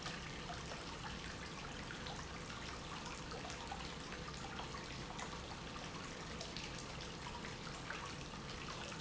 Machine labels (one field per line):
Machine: pump